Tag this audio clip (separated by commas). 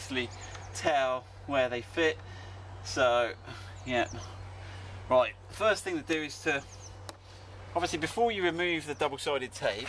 Speech